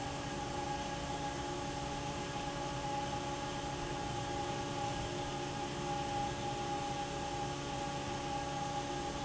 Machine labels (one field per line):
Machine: fan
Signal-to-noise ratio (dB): -6 dB